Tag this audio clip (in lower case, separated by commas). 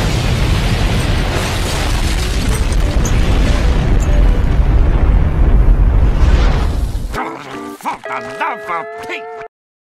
speech, explosion, music